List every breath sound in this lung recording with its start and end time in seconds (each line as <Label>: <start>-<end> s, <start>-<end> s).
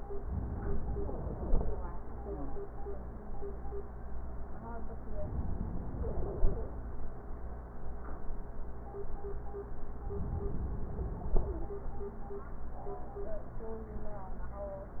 Inhalation: 0.31-1.62 s, 5.17-6.48 s, 10.11-11.42 s